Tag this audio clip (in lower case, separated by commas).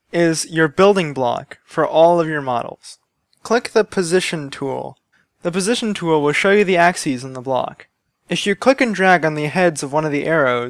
speech